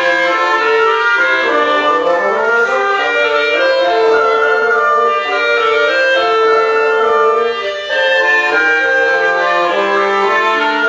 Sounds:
Music

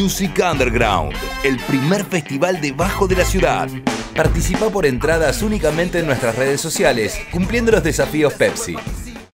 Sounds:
Music, Background music

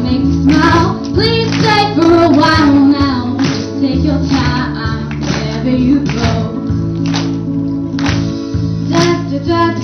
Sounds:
Singing, Vocal music

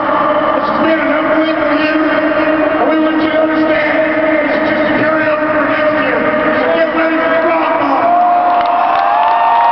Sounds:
Narration, man speaking, Speech

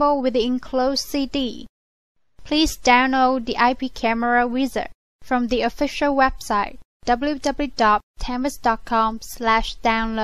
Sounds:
Speech

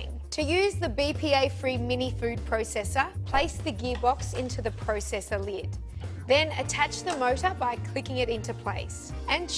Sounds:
Music, Speech

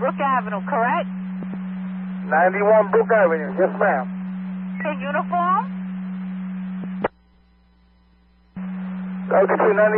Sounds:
police radio chatter

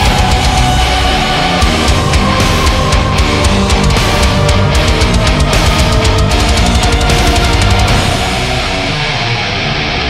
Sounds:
Music, Jingle (music)

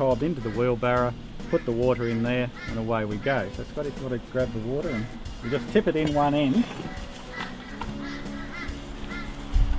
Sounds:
Speech, Music

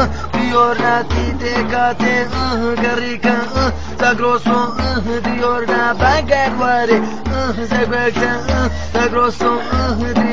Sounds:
Male singing, Music

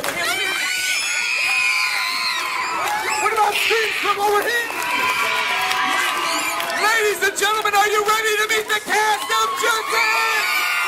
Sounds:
Speech

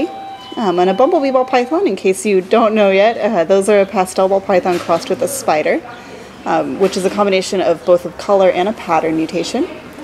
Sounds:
Speech, inside a large room or hall

